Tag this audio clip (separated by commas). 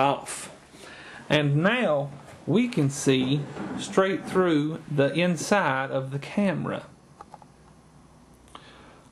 Speech